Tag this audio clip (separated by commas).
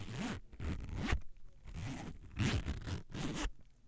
home sounds, Zipper (clothing)